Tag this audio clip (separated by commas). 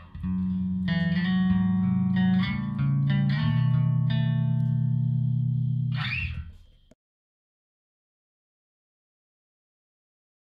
Plucked string instrument, Music, Musical instrument, Echo, Effects unit